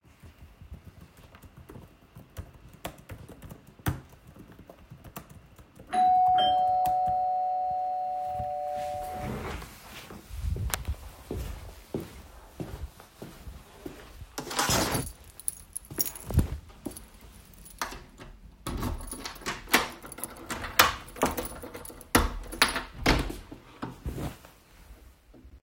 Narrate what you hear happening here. I started typing on the keyboard in the kitchen,the doorbell rang. I walked into the hallway picked up my keys and inserted it into the door, unclocked it then I opened the door.